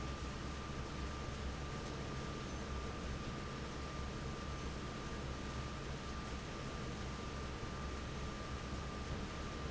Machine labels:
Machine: fan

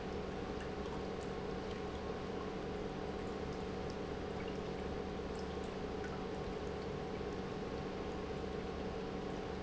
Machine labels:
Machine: pump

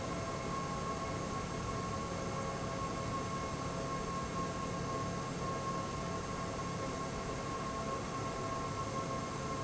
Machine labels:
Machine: fan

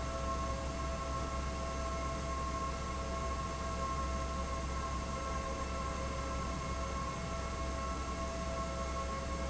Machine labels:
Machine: fan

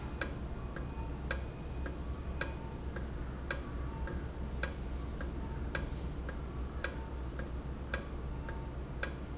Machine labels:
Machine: valve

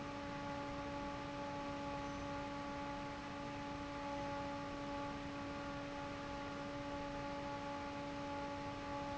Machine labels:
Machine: fan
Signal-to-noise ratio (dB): 6 dB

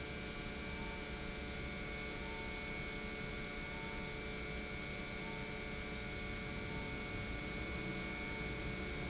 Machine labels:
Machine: pump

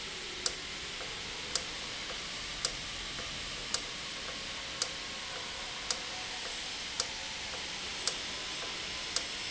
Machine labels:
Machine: valve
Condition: normal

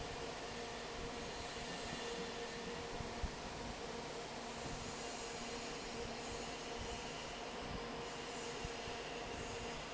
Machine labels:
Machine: fan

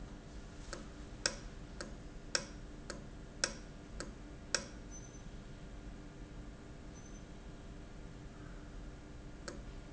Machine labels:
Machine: valve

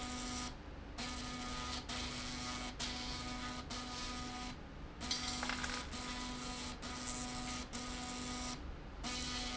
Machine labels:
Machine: slide rail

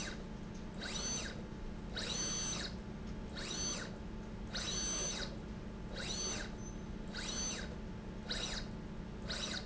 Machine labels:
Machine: slide rail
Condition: abnormal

